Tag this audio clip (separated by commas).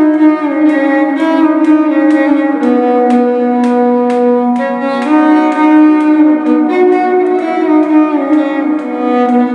Violin, Musical instrument, Music